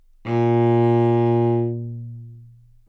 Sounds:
music
bowed string instrument
musical instrument

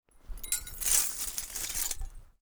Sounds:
glass

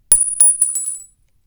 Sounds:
chink
glass

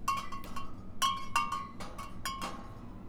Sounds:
glass

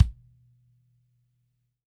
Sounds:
percussion
music
musical instrument
bass drum
drum

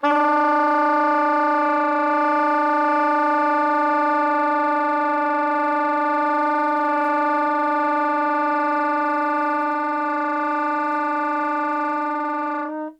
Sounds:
music
musical instrument
wind instrument

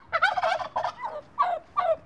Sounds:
wild animals
animal
bird

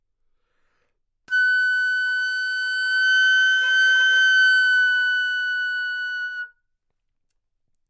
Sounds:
music
musical instrument
wind instrument

